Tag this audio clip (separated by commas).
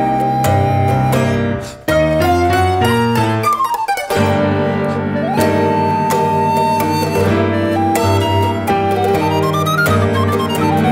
Bowed string instrument, Piano, Guitar, Mandolin, Music, Musical instrument